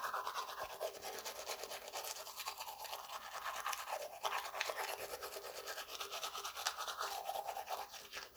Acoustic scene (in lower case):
restroom